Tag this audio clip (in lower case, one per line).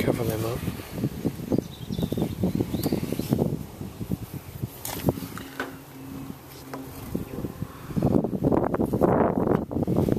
speech
outside, rural or natural